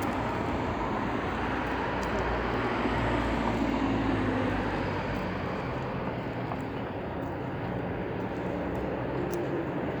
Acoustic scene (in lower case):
street